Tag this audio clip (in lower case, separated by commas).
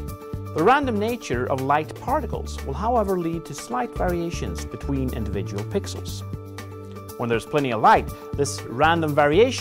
music, speech